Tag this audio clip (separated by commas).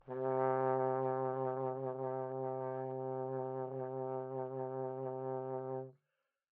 Musical instrument, Brass instrument, Music